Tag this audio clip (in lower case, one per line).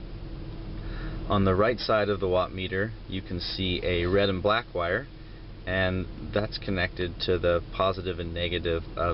speech